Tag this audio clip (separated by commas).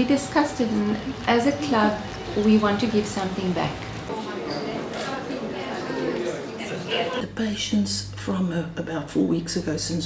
Speech